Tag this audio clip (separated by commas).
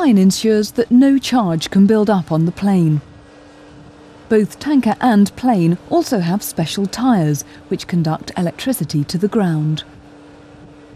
Speech